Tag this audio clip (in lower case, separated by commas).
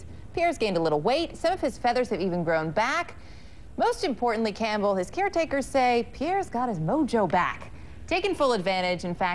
penguins braying